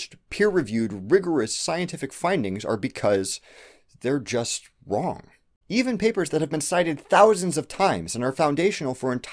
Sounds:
Narration, Speech

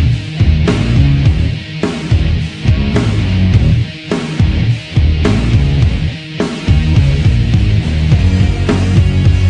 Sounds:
Music

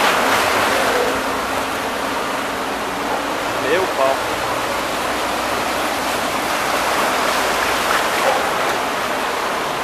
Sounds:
Speech, Waterfall

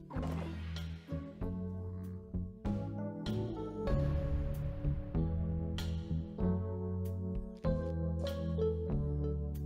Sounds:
Music

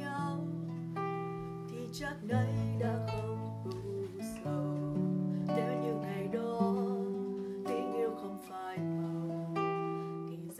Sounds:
Acoustic guitar, Plucked string instrument, Music, Guitar, Musical instrument

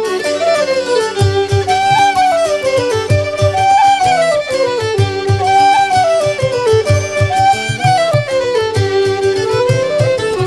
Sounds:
Bowed string instrument, fiddle

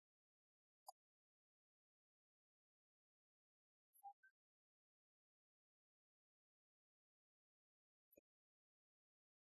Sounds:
Speech, Music

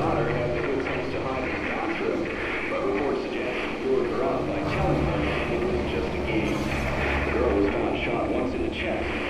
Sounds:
Speech, Radio

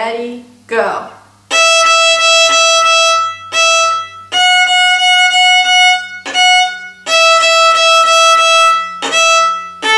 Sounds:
Music, fiddle, Musical instrument, Speech

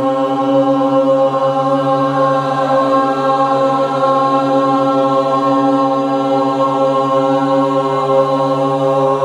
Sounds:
Mantra, Singing, Music

